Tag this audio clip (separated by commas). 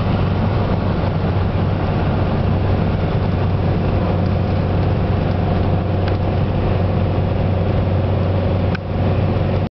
Car passing by